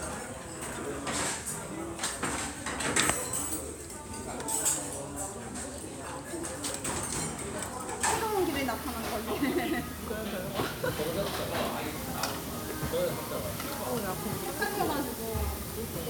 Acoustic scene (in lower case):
restaurant